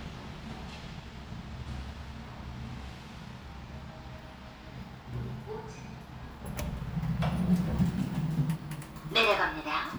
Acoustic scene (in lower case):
elevator